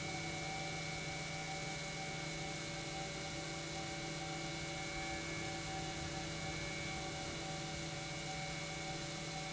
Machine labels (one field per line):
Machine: pump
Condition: normal